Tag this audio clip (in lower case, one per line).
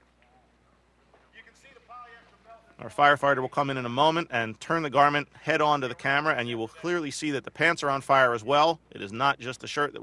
speech